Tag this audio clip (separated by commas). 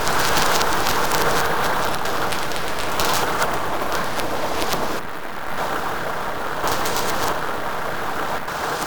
Wind